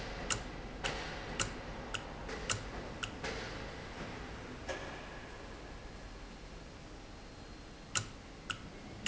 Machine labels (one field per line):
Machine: valve